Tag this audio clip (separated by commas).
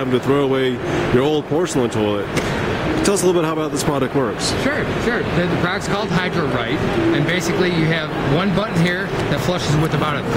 Speech